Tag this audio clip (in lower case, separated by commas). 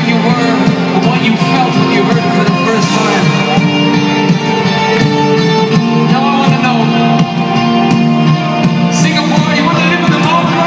speech, music, inside a large room or hall